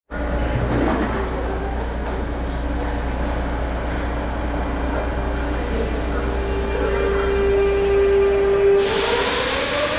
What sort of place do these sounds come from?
subway station